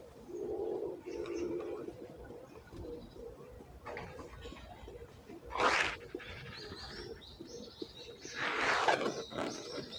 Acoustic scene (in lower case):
residential area